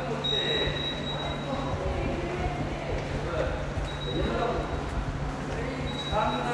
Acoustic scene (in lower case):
subway station